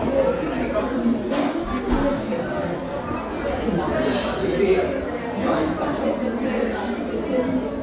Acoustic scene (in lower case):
crowded indoor space